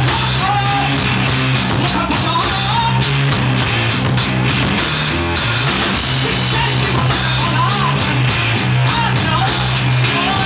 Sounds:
Musical instrument, Drum kit, Drum, playing drum kit, Rock music, Music

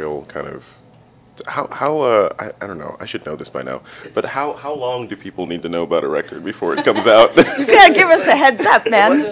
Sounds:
Speech

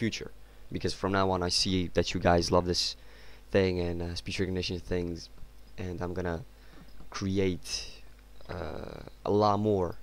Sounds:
Speech, man speaking

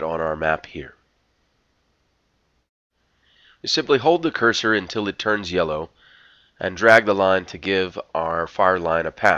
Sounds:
Speech

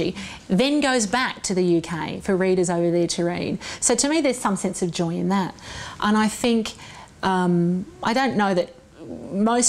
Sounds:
Speech

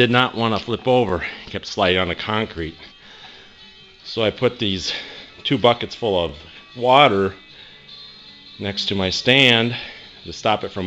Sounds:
Speech, Music

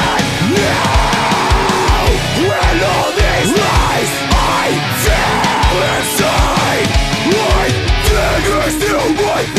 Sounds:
Music

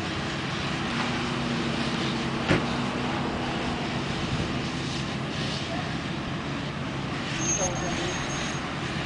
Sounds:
Vehicle, Car, Speech

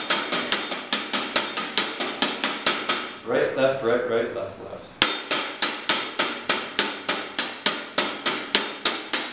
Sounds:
Drum roll, Speech, Music

